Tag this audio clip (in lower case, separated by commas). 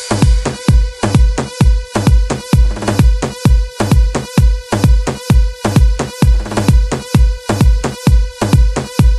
music, electronica